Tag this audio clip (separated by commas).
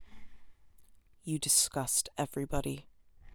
Human voice